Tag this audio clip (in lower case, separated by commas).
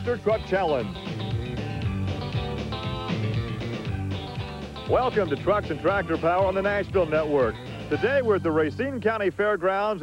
music, speech